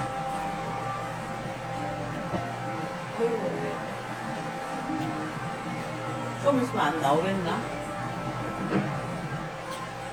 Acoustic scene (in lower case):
cafe